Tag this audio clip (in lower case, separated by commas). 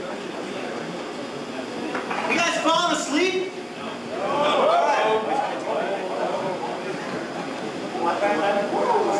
speech